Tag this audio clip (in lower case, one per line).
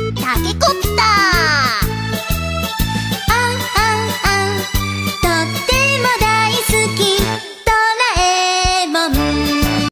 child singing
music